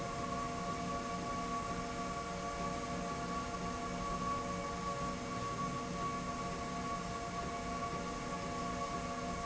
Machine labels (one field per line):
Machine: slide rail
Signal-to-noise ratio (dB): -6 dB